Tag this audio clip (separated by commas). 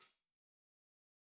Percussion, Musical instrument, Tambourine, Music